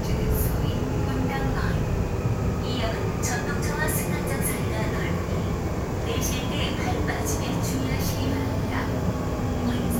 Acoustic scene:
subway train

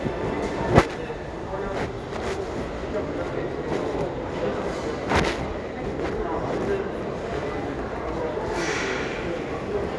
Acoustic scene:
restaurant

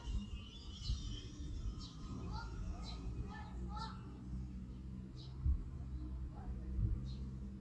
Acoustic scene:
park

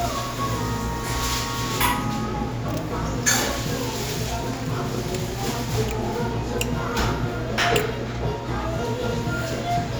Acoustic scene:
cafe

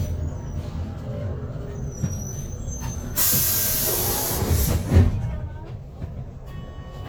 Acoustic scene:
bus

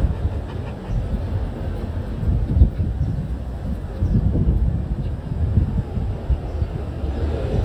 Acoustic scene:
residential area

